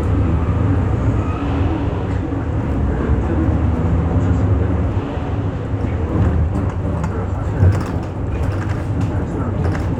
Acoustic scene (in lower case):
bus